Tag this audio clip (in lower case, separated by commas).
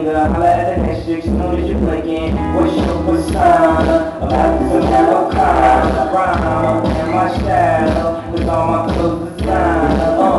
music, music of latin america